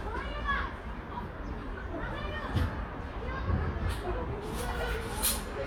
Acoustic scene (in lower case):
residential area